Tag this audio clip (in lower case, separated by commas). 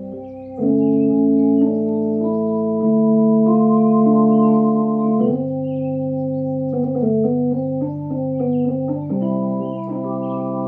hammond organ, playing hammond organ, organ